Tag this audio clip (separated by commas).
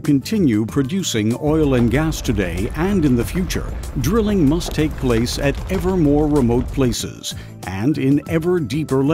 Music, Speech